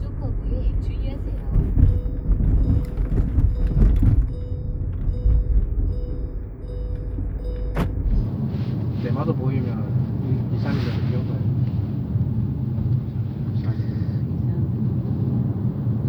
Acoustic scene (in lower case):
car